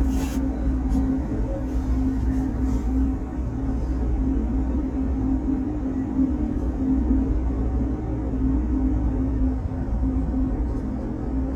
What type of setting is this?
bus